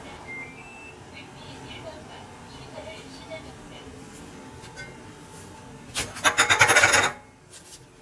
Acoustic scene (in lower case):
kitchen